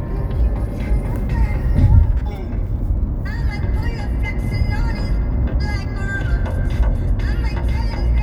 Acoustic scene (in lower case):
car